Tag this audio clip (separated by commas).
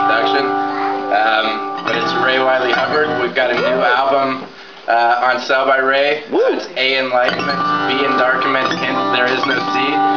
Music, Speech